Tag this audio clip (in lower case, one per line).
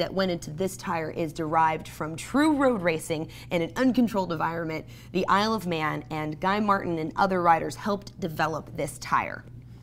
inside a small room
speech